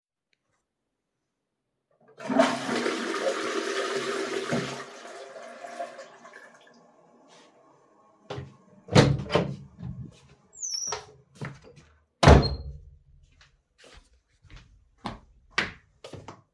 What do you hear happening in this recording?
flushed the toilet, then opened the door and walked away